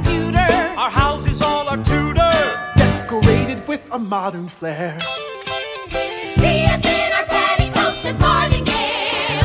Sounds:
music

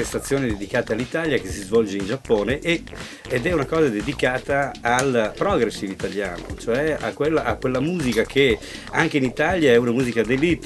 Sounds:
music
speech

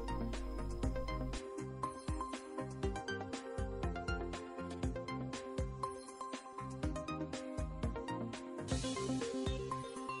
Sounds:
music

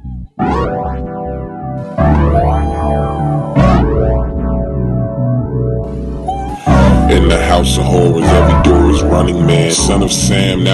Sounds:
synthesizer
music

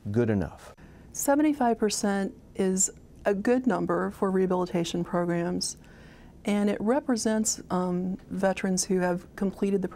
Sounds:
speech

